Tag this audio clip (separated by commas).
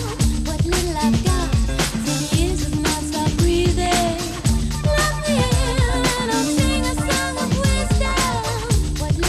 Music